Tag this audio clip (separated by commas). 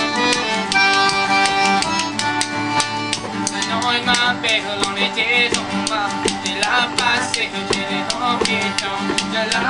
Tap, Music